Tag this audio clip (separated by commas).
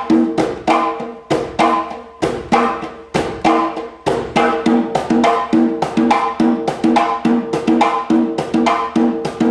Music, Musical instrument, Drum